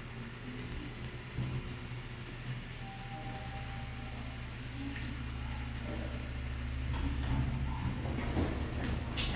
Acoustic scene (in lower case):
elevator